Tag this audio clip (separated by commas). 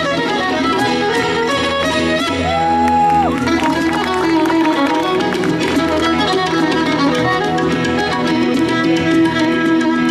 Violin, Musical instrument, Percussion, Traditional music, Crowd, Music